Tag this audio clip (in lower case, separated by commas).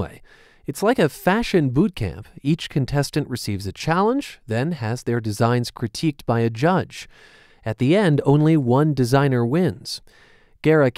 speech, radio